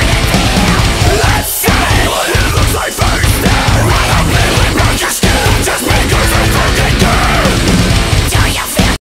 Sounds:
music

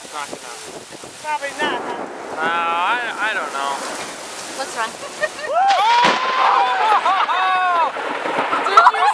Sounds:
speech

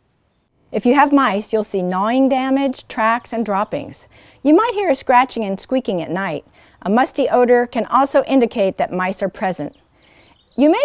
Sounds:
speech

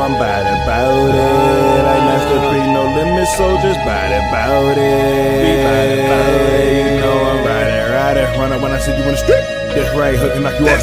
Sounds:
music

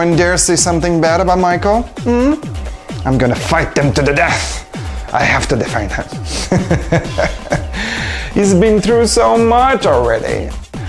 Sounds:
music
speech

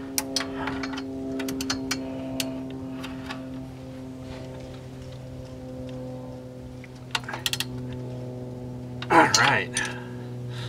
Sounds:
vehicle
speech

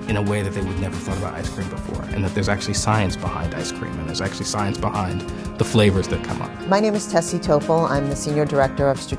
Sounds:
music
speech

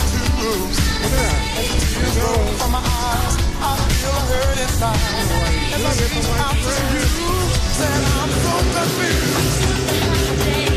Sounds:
music

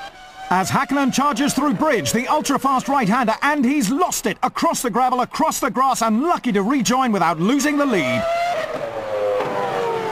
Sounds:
speech

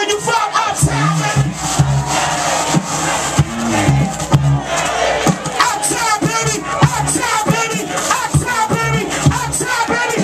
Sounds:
music

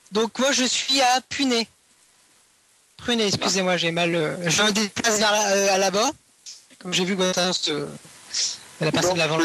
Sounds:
radio
speech

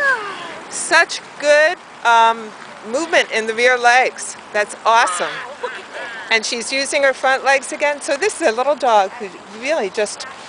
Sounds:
speech

